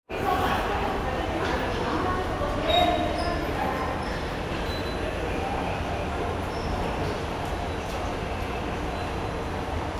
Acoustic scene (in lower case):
subway station